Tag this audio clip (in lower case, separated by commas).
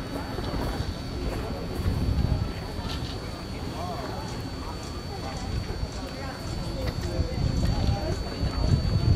speech